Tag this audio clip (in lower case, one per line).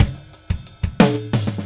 musical instrument
percussion
drum kit
music